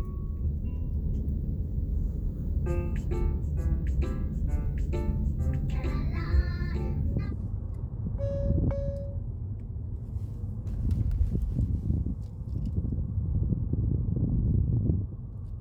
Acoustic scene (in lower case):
car